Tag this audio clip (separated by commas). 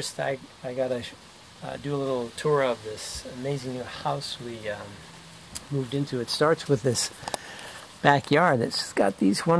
Speech